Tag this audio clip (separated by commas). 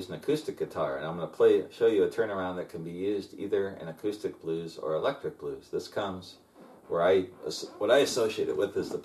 Speech